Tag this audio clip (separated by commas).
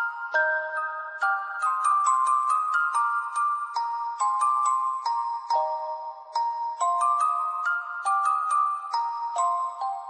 Music, Sad music, Theme music